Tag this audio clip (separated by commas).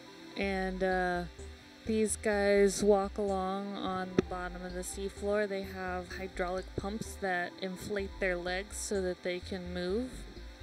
Speech